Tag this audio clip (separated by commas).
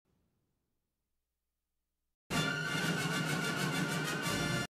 Music